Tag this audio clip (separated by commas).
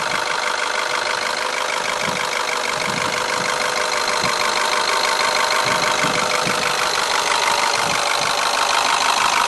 Medium engine (mid frequency), Idling, Vehicle